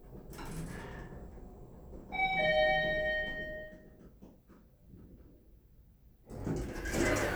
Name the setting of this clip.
elevator